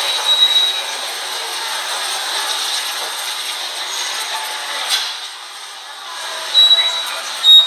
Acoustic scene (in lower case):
subway station